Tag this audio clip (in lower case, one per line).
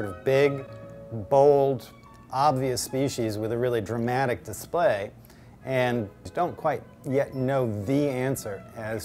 music
speech